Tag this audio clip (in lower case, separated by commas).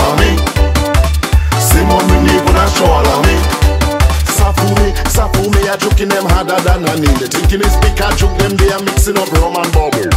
music